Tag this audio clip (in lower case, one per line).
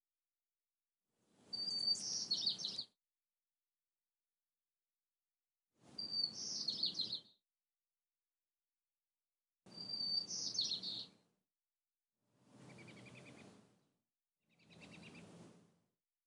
wild animals
tweet
animal
bird call
bird